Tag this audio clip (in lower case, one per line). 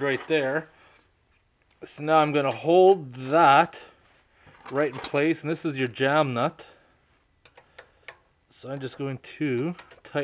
speech
inside a small room